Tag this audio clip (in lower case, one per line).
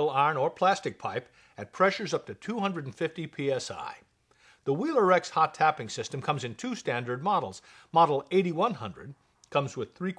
speech